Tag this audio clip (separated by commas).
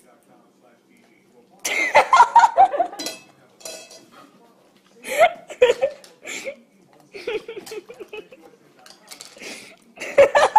inside a small room, Snicker, people sniggering